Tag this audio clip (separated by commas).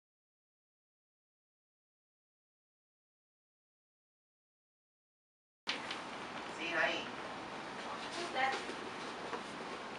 Speech, inside a small room, Silence